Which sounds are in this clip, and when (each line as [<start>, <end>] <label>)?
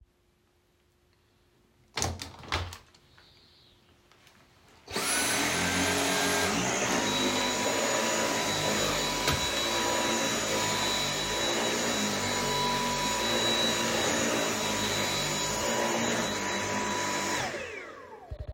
[1.92, 2.84] window
[4.84, 18.15] vacuum cleaner